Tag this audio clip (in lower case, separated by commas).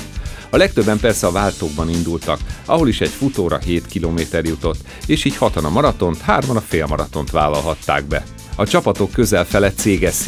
speech, music